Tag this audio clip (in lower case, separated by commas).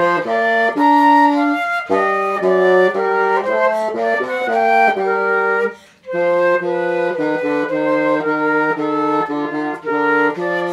music, flute, woodwind instrument, musical instrument